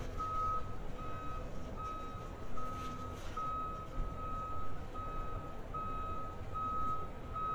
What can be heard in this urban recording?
reverse beeper